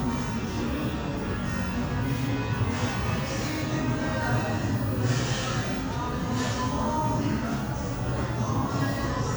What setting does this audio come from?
cafe